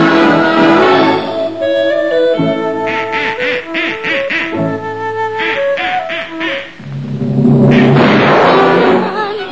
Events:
[0.00, 9.51] music
[2.85, 3.60] duck
[3.74, 4.47] duck
[5.37, 5.56] duck
[5.77, 5.97] duck
[6.07, 6.26] duck
[6.39, 6.63] duck
[6.79, 7.97] sound effect
[7.69, 8.26] duck
[7.95, 8.61] gunfire
[8.43, 9.51] singing

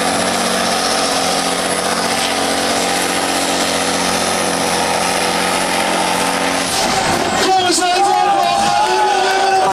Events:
[0.00, 7.42] revving
[0.00, 9.69] truck
[6.69, 7.13] air brake
[7.32, 7.46] air brake
[7.39, 9.69] man speaking
[7.78, 9.69] cheering
[7.78, 9.69] crowd
[8.00, 8.19] air brake
[8.53, 8.76] air brake

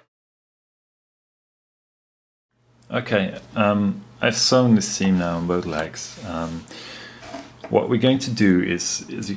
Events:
[0.00, 0.03] background noise
[2.46, 9.35] background noise
[2.86, 3.38] man speaking
[3.50, 4.03] man speaking
[4.19, 6.11] man speaking
[6.17, 6.56] human voice
[6.68, 7.17] breathing
[7.17, 7.51] surface contact
[7.56, 9.35] man speaking

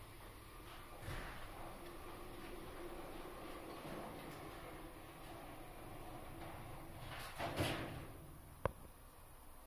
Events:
[0.00, 9.64] background noise
[0.00, 7.96] mechanisms
[8.60, 8.84] generic impact sounds

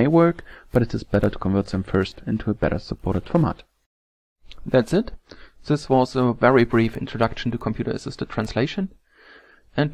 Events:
[0.00, 0.35] man speaking
[0.00, 3.83] background noise
[0.36, 0.63] breathing
[0.66, 3.54] man speaking
[4.34, 9.93] background noise
[4.36, 5.14] man speaking
[5.24, 5.54] breathing
[5.61, 8.86] man speaking
[9.01, 9.60] breathing
[9.64, 9.93] man speaking

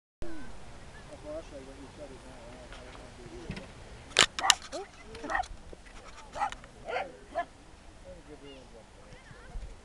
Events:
[0.20, 9.84] background noise
[0.21, 0.46] human voice
[0.84, 1.06] chirp
[1.09, 3.56] male speech
[1.10, 9.71] conversation
[1.33, 1.55] chirp
[2.70, 2.96] generic impact sounds
[3.38, 3.60] generic impact sounds
[4.08, 4.24] generic impact sounds
[4.33, 4.51] tick
[4.36, 4.61] bark
[4.51, 4.76] surface contact
[4.65, 5.32] human voice
[5.07, 5.19] tick
[5.22, 5.41] bark
[5.38, 5.50] surface contact
[5.82, 6.21] surface contact
[6.27, 6.46] bark
[6.46, 6.64] tick
[6.79, 7.04] bark
[6.79, 7.43] human voice
[7.25, 7.49] bark
[7.93, 9.66] male speech
[8.29, 8.65] child speech
[9.04, 9.59] child speech

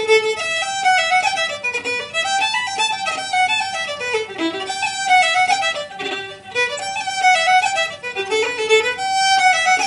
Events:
[0.00, 9.85] mechanisms
[0.00, 9.85] music

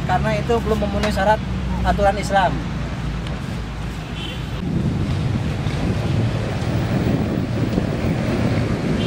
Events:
[0.00, 1.44] male speech
[0.00, 9.05] motor vehicle (road)
[0.00, 9.05] wind
[1.00, 1.17] generic impact sounds
[1.80, 2.52] male speech
[3.21, 3.30] tick
[4.10, 4.42] vehicle horn
[5.07, 5.17] tick
[6.54, 6.63] tick
[7.68, 7.78] tick
[8.46, 8.59] tick

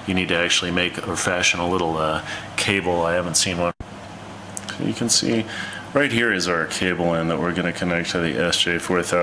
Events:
[0.00, 3.68] background noise
[0.03, 2.26] male speech
[2.51, 3.67] male speech
[3.75, 9.22] background noise
[4.52, 5.43] male speech
[5.91, 9.22] male speech

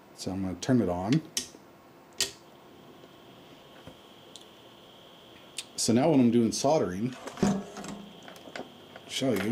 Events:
[0.00, 2.49] mechanisms
[0.22, 1.27] male speech
[1.10, 1.25] generic impact sounds
[1.12, 1.20] tick
[1.37, 1.59] generic impact sounds
[2.15, 2.44] generic impact sounds
[2.48, 9.51] mechanical fan
[3.87, 3.94] tick
[4.38, 4.44] tick
[5.35, 5.42] tick
[5.61, 5.69] tick
[5.79, 7.25] male speech
[7.13, 7.97] generic impact sounds
[8.25, 8.65] generic impact sounds
[8.93, 9.51] generic impact sounds
[9.10, 9.51] male speech

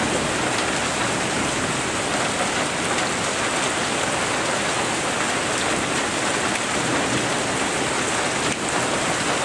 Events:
[0.00, 9.44] rain
[0.00, 9.44] wind
[0.50, 0.59] generic impact sounds
[2.16, 2.23] generic impact sounds
[2.47, 2.58] generic impact sounds
[2.91, 3.06] generic impact sounds
[5.52, 5.61] generic impact sounds
[5.88, 5.94] generic impact sounds
[8.37, 8.47] generic impact sounds

